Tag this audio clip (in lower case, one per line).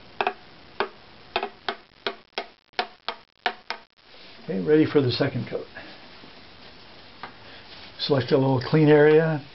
inside a small room
speech